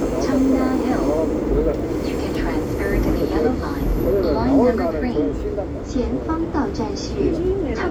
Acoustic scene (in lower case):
subway train